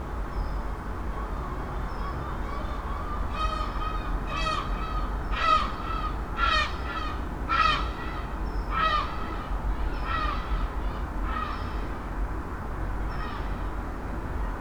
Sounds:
Bird, Animal, Wild animals, seagull

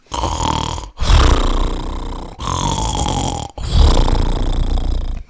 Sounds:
Breathing, Respiratory sounds

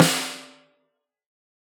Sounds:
Music, Musical instrument, Drum, Snare drum, Percussion

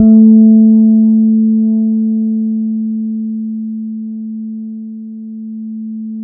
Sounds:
Guitar, Bass guitar, Musical instrument, Music, Plucked string instrument

